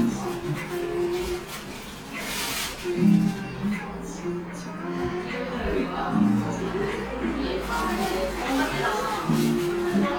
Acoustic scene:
cafe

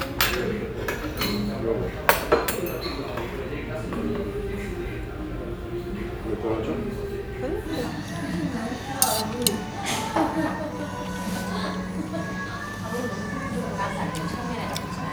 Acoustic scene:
restaurant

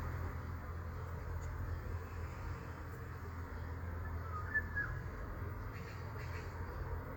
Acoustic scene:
park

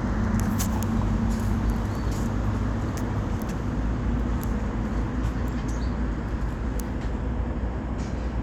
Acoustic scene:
residential area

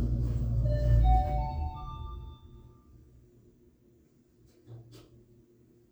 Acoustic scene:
elevator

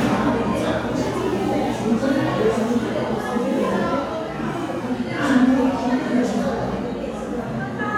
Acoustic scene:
crowded indoor space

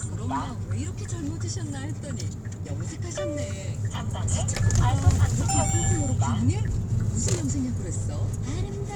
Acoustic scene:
car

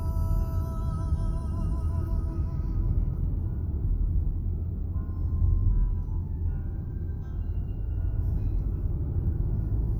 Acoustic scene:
car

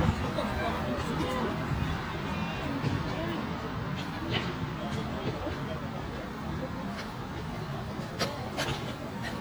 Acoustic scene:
residential area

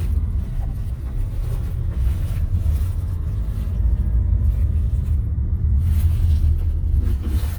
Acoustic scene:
car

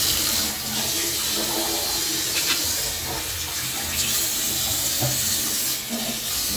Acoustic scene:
restroom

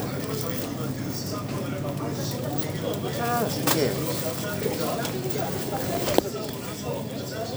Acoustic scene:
crowded indoor space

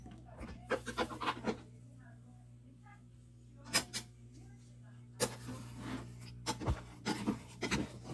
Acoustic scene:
kitchen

